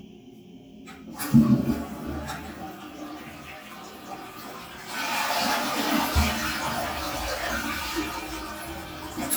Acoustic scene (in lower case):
restroom